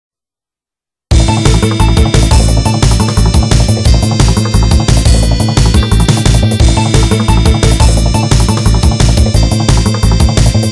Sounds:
music, soundtrack music, video game music, background music

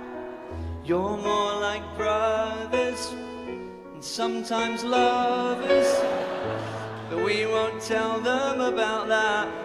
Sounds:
music

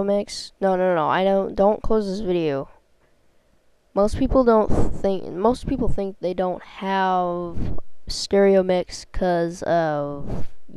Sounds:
speech

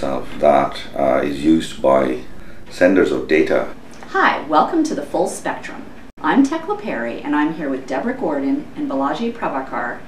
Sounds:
speech

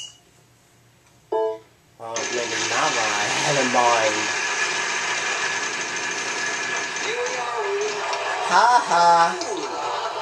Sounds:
speech, inside a large room or hall

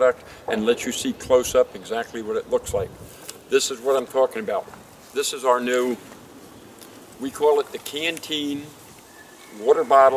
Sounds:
speech

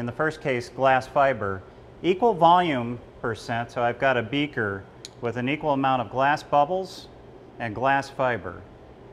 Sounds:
clink, speech

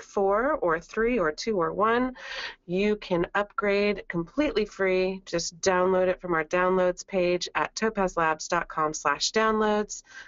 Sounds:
speech

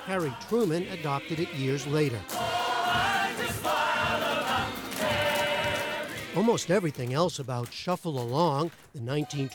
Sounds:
speech, music

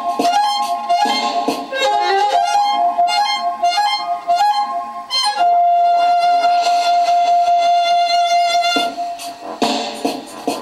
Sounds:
music, musical instrument, violin

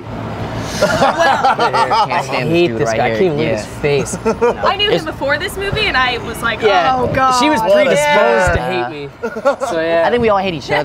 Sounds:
speech

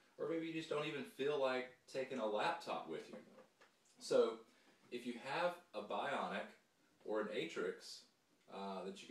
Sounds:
speech

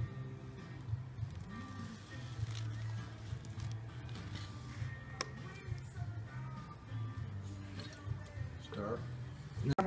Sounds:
music

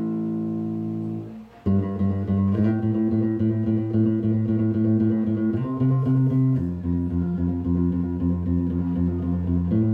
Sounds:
plucked string instrument, guitar, musical instrument, progressive rock, music, bass guitar

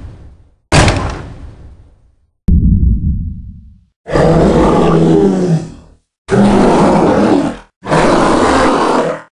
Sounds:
grunt, sound effect

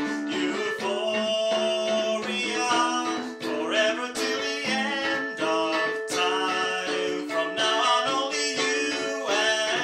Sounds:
music, pizzicato, musical instrument

